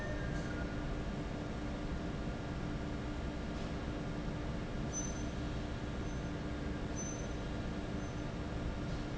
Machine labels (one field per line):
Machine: fan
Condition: normal